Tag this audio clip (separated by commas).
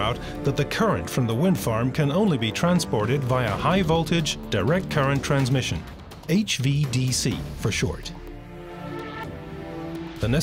Speech, Music